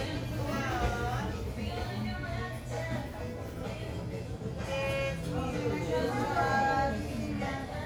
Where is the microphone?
in a crowded indoor space